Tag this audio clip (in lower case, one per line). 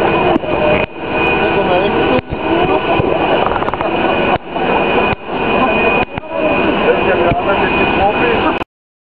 speech
vehicle